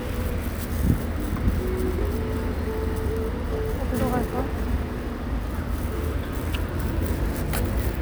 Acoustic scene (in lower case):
street